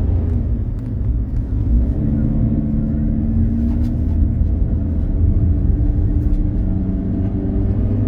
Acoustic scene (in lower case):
car